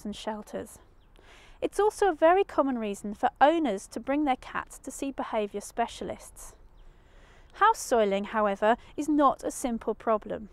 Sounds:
Speech

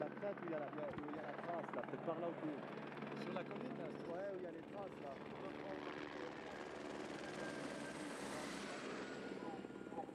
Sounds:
Speech

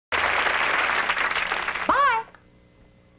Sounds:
Speech

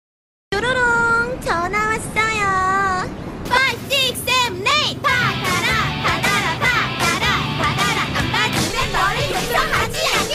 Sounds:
Music

